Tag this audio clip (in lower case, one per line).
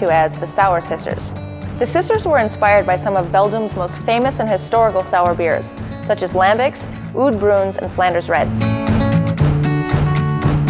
speech
music